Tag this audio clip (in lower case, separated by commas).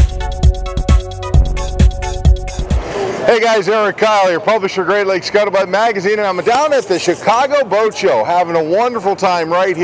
music, speech